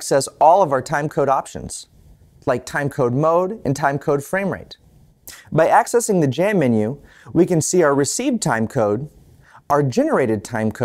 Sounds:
speech

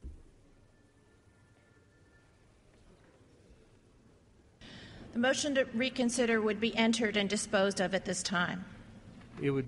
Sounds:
speech

